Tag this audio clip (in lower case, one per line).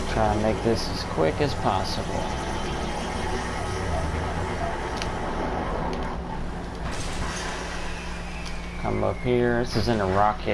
speech